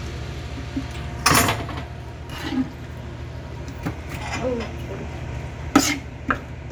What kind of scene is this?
kitchen